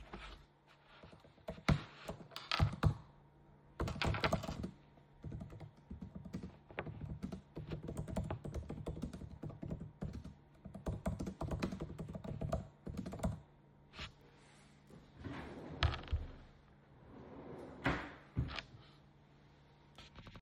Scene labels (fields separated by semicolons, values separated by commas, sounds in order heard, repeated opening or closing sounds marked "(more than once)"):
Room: living room; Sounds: keyboard typing, wardrobe or drawer (more than once)